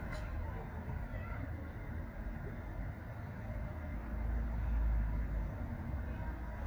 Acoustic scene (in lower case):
residential area